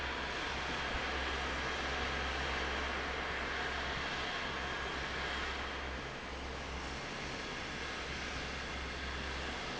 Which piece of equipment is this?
fan